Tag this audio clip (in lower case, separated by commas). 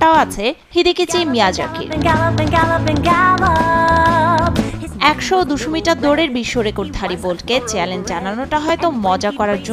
music, speech